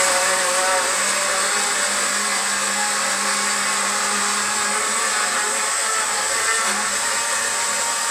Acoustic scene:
kitchen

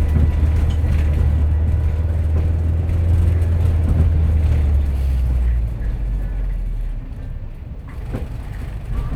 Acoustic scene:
bus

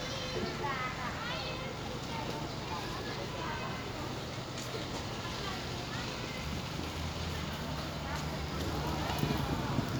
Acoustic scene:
residential area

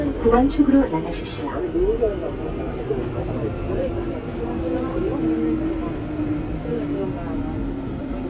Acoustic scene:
subway train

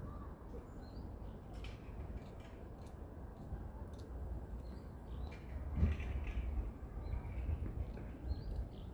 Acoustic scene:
residential area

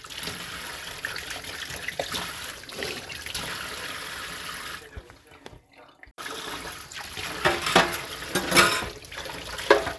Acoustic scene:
kitchen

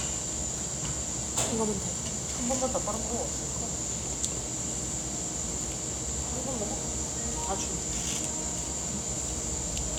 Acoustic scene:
cafe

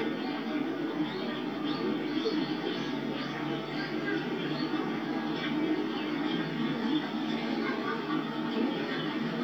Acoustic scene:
park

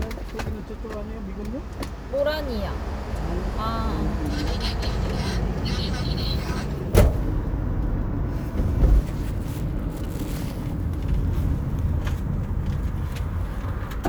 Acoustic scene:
car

